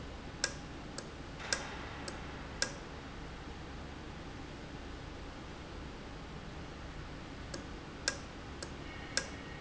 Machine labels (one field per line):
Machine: valve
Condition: normal